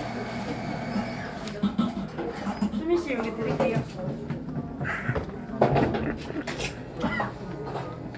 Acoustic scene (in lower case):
cafe